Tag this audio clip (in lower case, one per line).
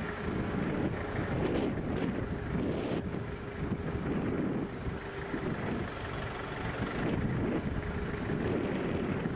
vehicle
truck